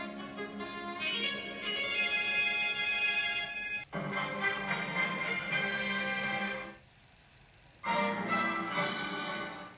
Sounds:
television

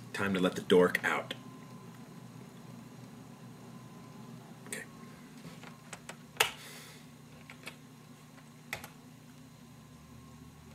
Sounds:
speech

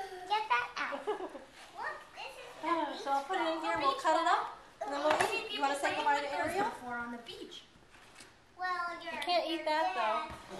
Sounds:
speech

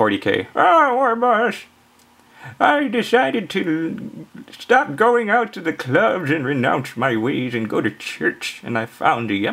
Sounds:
speech

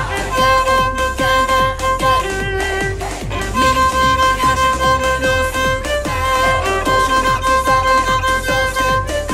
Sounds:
musical instrument
music
violin

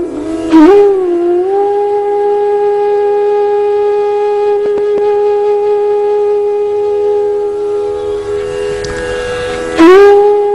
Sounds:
music

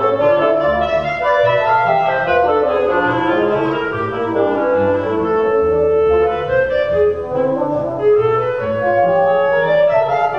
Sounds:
cello
wind instrument
bowed string instrument
pizzicato
double bass

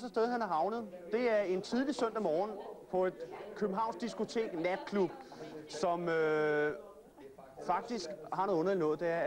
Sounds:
speech

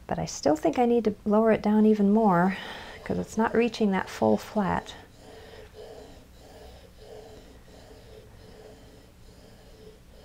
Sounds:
speech

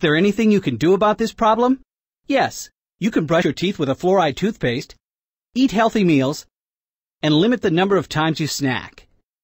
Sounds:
speech

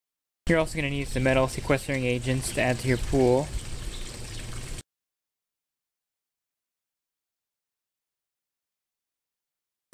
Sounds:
speech

